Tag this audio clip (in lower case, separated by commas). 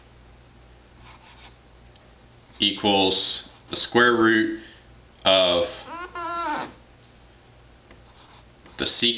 inside a small room, writing, speech